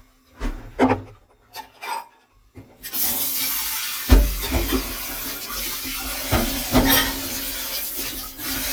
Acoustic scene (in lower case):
kitchen